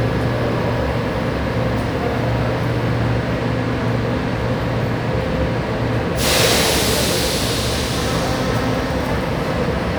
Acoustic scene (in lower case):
subway station